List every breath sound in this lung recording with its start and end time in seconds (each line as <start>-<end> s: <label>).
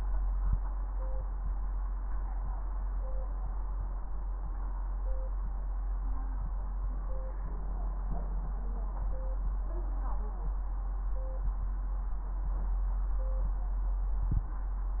No breath sounds were labelled in this clip.